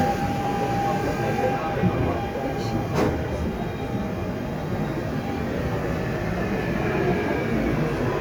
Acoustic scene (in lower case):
subway train